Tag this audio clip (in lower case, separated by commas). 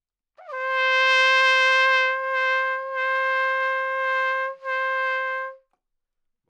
musical instrument, brass instrument, trumpet, music